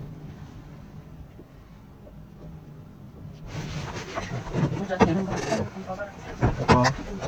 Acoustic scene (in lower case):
car